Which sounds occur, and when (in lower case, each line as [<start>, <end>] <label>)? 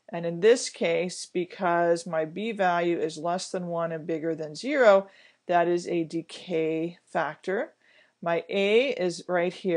[0.00, 9.75] background noise
[0.10, 5.06] woman speaking
[5.11, 5.39] breathing
[5.50, 7.02] woman speaking
[7.12, 7.77] woman speaking
[7.82, 8.16] breathing
[8.21, 9.75] woman speaking